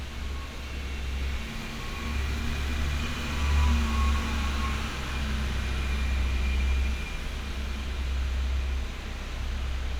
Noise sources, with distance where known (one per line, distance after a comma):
engine of unclear size